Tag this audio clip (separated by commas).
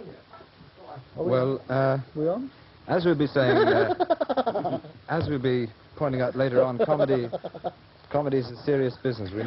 Laughter, Speech